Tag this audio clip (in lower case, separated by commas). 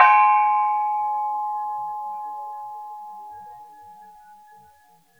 percussion, music, gong, musical instrument